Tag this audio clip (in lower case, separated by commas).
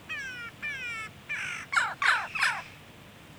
animal, bird, wild animals